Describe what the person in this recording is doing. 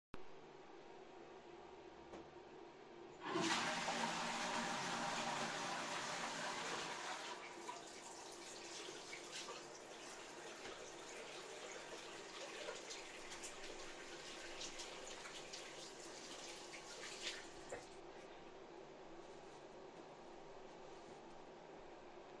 I walked 2 steps to the toilet in my bathroom and flushed. While it was still flushing, I turned on the water in the bathroom sink and washed my hands with soap from the dispenser. I turned off the water and then I dried my hands with a towel.